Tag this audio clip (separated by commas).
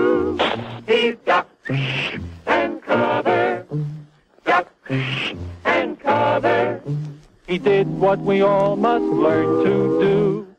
Music